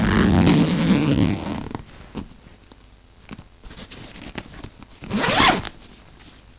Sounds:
zipper (clothing)
home sounds

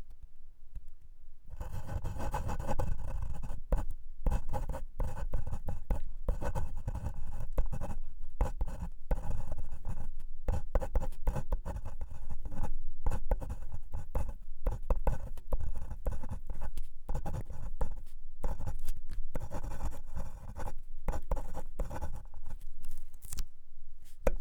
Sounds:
home sounds
writing

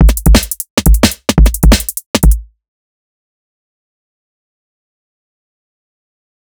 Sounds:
percussion
music
drum kit
musical instrument

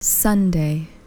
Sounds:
human voice
speech
woman speaking

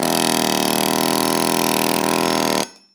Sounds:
tools

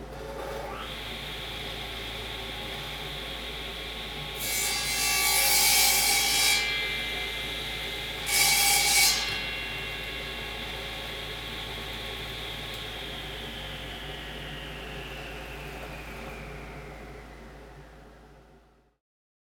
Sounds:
sawing
tools

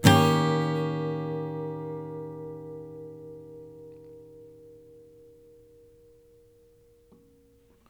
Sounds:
strum
plucked string instrument
acoustic guitar
guitar
music
musical instrument

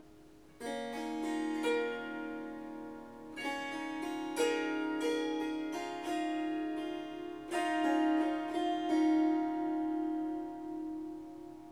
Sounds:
musical instrument
music
harp

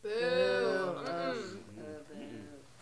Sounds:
human group actions
crowd

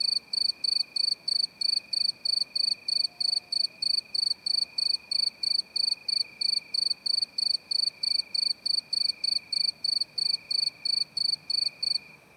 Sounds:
wild animals
animal
insect
cricket

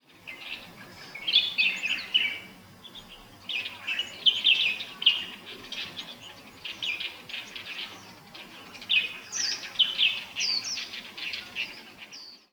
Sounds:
wild animals
bird
animal
bird call

